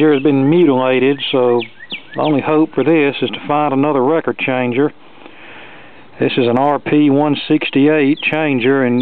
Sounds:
Speech

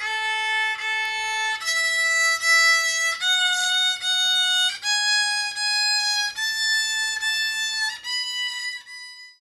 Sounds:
Musical instrument, Music, fiddle

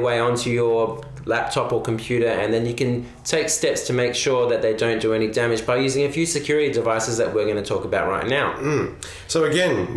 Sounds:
Speech

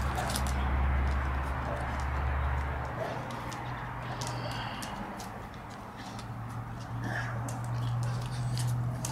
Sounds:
Domestic animals, Dog, Animal

